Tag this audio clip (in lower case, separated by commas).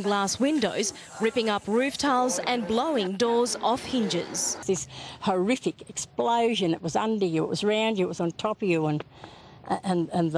speech